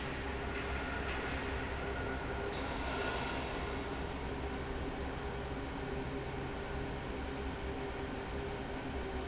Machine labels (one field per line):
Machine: fan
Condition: normal